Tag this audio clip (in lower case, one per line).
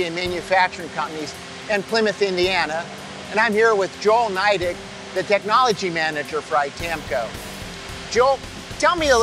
speech
music